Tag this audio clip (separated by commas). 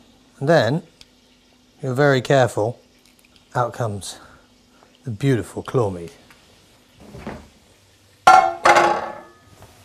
Speech, inside a small room